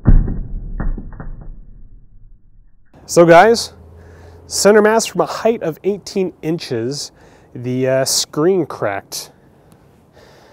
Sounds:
Speech

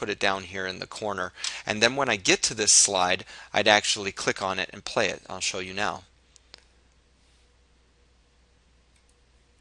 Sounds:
Speech

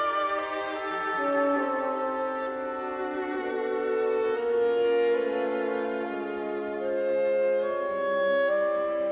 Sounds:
Music

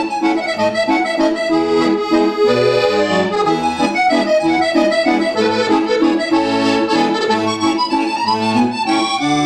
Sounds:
playing accordion

